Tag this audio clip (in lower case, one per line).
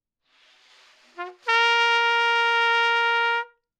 musical instrument
brass instrument
trumpet
music